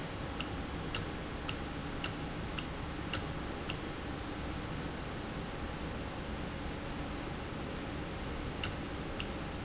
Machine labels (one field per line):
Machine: valve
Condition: normal